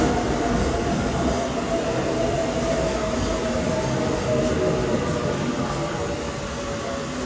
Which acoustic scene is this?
subway station